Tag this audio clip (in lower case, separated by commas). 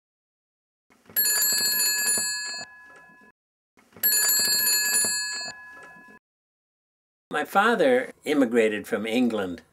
telephone, speech